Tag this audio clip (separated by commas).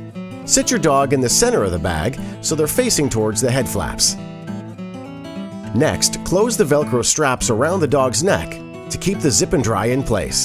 Music, Speech